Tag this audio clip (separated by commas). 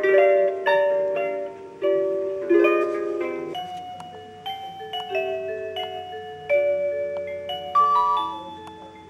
Music